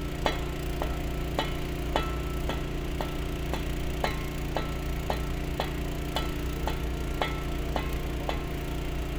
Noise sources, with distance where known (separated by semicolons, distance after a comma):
jackhammer, far; non-machinery impact, near